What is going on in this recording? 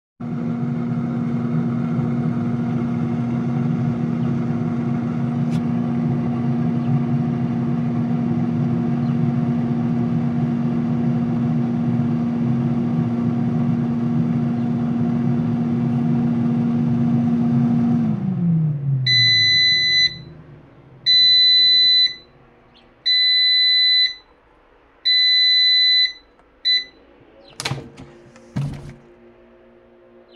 I stood by the running microwave; because it was about to finish. Shortly after the alarm went off